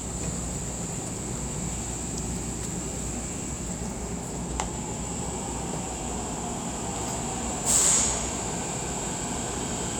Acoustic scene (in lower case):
subway train